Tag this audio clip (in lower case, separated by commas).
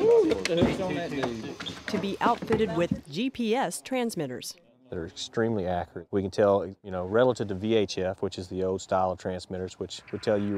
speech